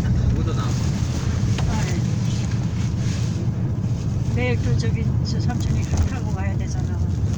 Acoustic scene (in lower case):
car